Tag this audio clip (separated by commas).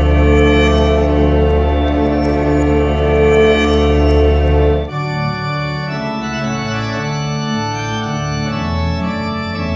Organ